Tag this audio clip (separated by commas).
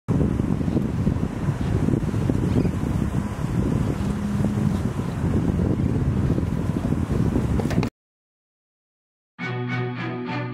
Vehicle, Wind, Sailboat, Music, sailing